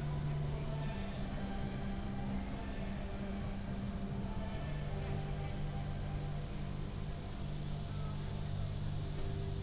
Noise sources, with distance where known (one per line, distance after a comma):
music from an unclear source